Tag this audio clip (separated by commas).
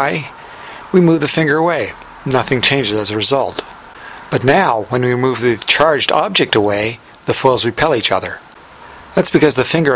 Speech